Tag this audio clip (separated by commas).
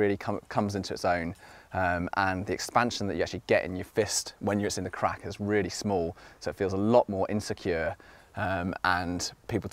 Speech